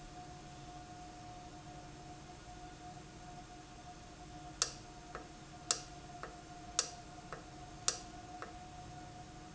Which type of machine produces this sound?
valve